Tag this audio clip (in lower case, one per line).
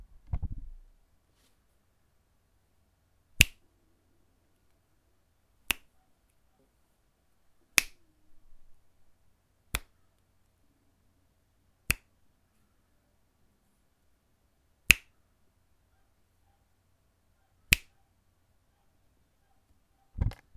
hands